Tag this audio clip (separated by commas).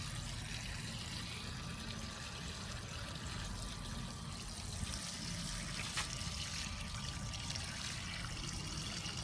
Stream